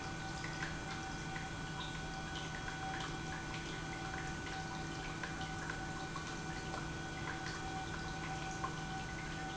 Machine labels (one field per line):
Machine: pump